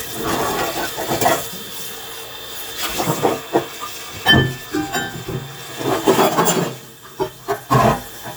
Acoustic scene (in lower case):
kitchen